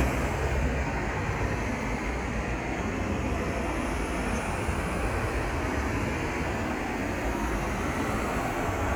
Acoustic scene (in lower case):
street